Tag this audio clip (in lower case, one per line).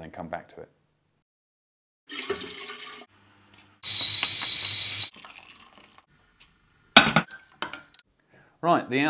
speech